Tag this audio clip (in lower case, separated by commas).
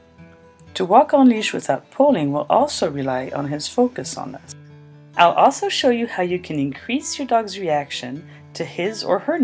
music, speech